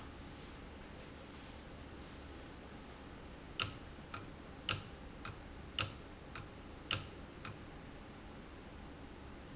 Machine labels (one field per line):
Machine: valve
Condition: abnormal